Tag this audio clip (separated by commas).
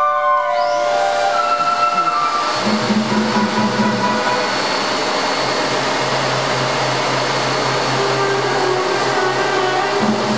Music, Orchestra, Vacuum cleaner